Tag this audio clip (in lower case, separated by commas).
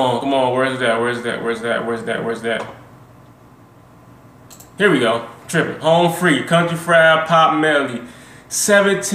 speech